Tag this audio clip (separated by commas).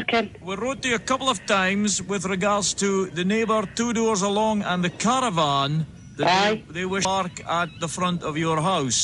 Speech